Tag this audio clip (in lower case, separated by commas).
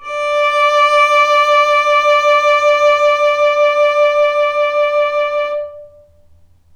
music, musical instrument, bowed string instrument